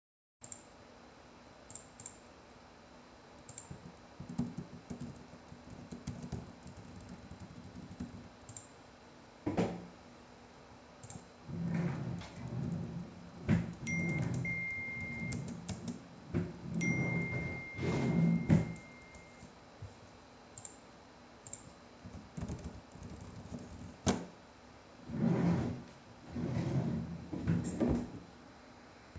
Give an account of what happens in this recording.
I sat at the desk, typed in something on my laptop and clicked the mouse while somebody else was opening and closing the drawer. At the same time, I received notifications on my phone. I moved around with my office chair on the hardwood floor.